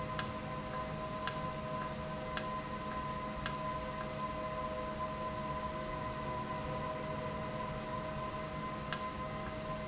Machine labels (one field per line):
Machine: valve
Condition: normal